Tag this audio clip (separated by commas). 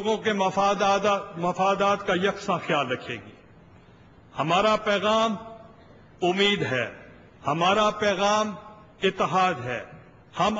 Narration, man speaking, Speech